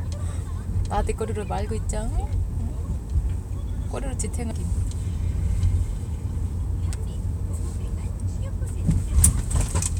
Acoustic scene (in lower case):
car